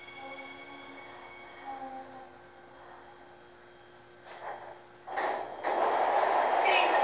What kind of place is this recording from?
subway train